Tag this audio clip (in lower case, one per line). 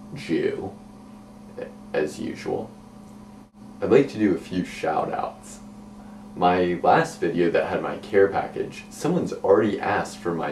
speech